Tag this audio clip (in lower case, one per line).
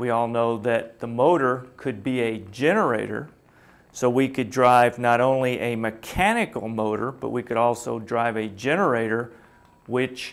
speech